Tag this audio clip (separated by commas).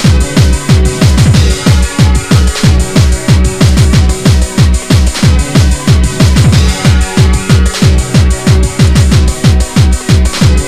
Electronic music, Music